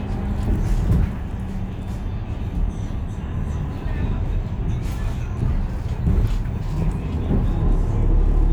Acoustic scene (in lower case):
bus